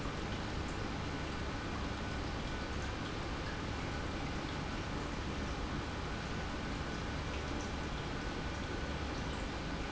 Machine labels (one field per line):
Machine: pump